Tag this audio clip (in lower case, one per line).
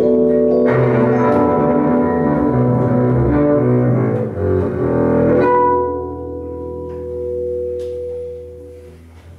playing double bass